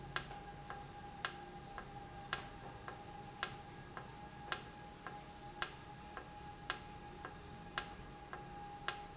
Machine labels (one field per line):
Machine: valve